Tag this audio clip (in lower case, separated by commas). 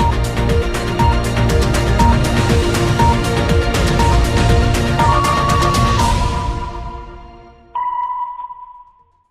music